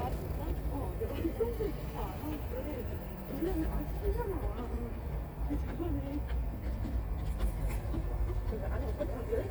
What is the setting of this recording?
park